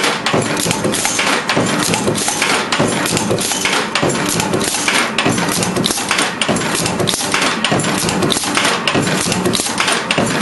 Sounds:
inside a small room

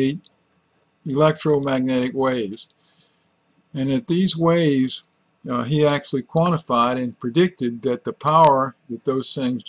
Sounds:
Speech

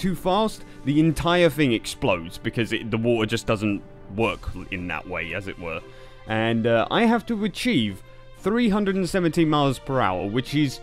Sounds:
Speech, Music

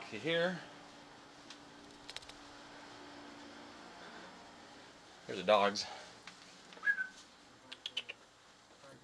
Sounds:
Speech

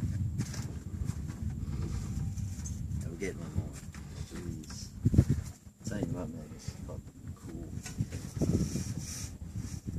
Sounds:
Speech

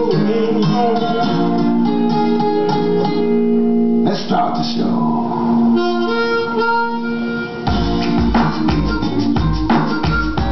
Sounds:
inside a large room or hall, Music

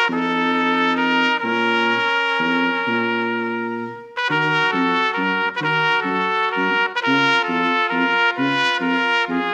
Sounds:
Trumpet, Trombone, Music, Brass instrument

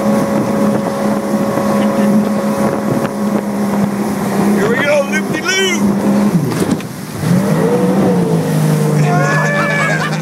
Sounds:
Water vehicle, Speech, Motorboat, Vehicle

